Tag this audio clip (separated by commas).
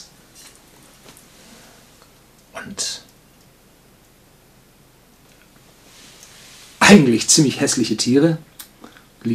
Speech